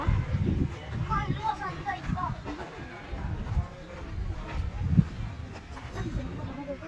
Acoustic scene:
park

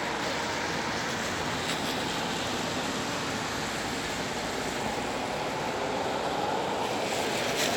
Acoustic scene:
street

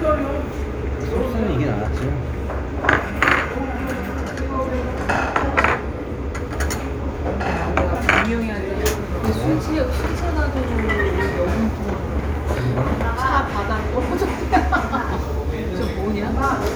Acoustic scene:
restaurant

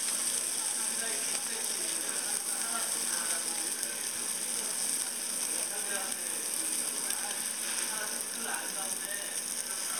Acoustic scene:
restaurant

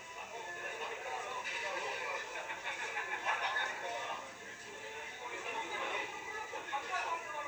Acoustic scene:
restaurant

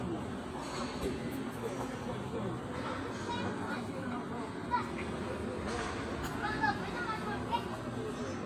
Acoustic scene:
park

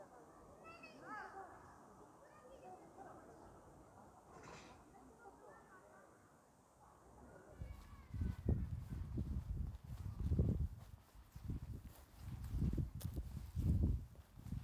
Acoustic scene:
park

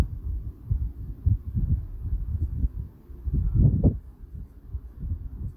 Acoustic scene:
residential area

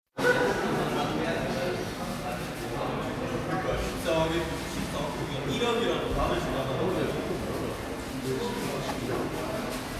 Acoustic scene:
cafe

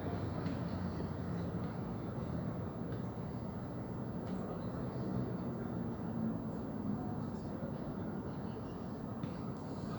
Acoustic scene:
park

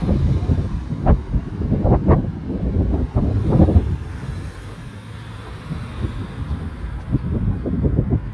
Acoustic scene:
residential area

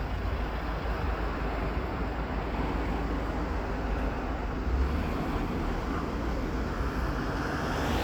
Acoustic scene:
street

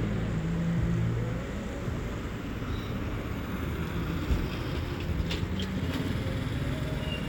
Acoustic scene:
street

